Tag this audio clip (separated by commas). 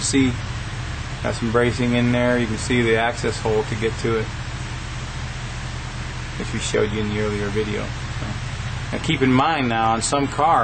inside a large room or hall, Speech